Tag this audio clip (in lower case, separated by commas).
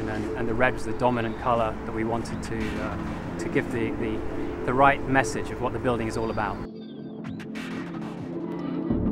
music, speech